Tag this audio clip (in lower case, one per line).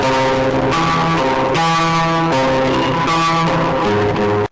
plucked string instrument
musical instrument
guitar
music